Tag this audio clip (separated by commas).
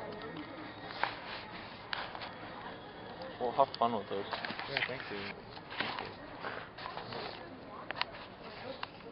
Speech, inside a public space